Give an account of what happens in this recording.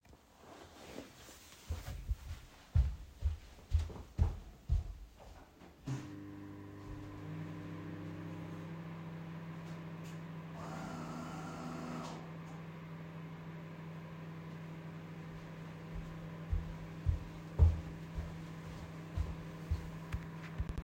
I stood up and moved the chair to go to the kitchen and activate first the microwave and second the coffee machine and then went back to the chair again.